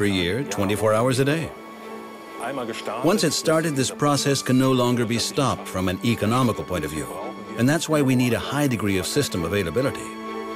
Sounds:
Music, Speech

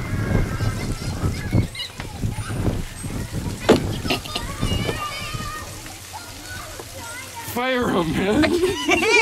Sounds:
Speech

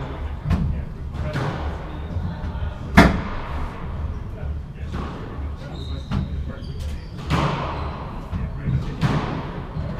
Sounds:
playing squash

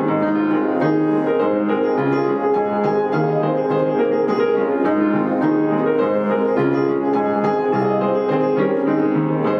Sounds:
Music, Piano

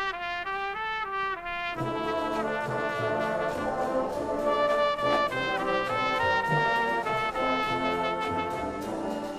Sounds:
Music, Trombone

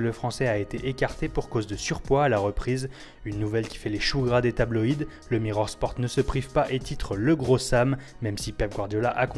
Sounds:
Speech, Music

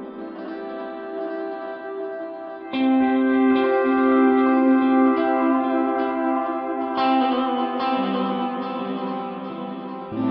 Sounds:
Music

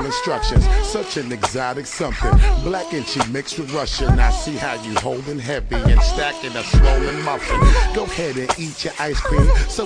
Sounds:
Music

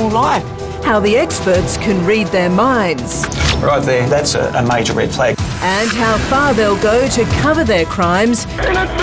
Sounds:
Music, Speech

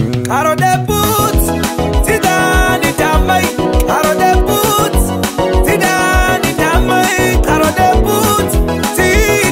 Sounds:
Rhythm and blues, Music

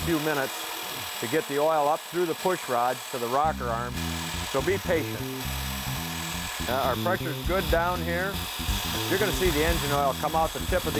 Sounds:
Engine

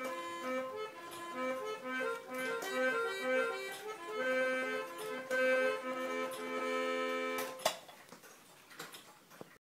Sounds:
Music, Tick-tock

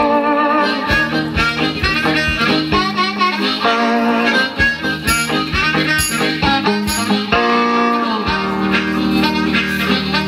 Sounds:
playing harmonica

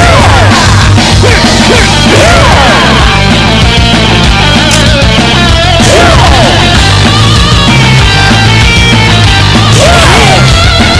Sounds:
Music

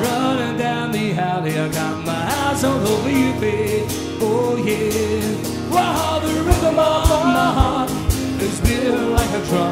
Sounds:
Rock and roll, Singing

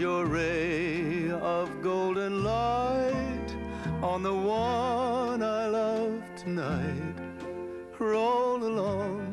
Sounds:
Male singing, Music

